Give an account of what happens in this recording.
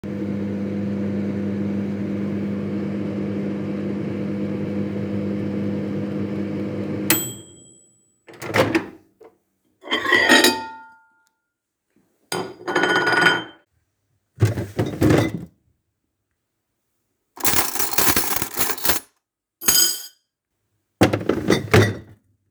after the microwave finished I opened it took my plate and put it aside and I open the drawer too look for a knife and a fork and after finding them I closed the drawer